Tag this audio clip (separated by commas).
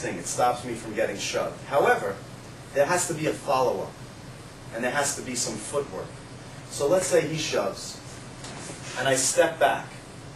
Speech